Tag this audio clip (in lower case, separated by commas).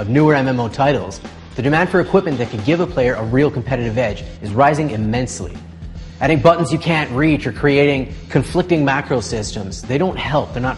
music, speech